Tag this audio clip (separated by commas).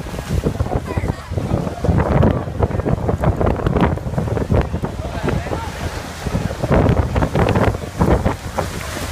Speech